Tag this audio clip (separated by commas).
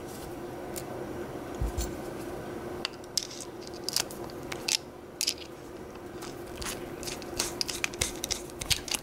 inside a small room